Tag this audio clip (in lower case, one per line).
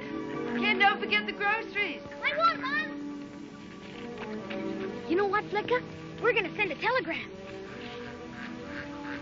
music
animal
speech